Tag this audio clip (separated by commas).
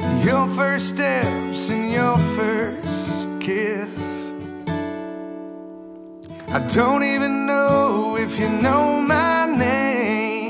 Singing, Music, Acoustic guitar